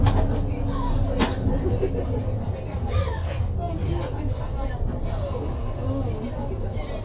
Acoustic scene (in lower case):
bus